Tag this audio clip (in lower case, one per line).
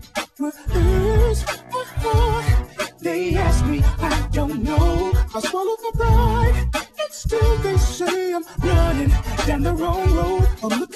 music
rock and roll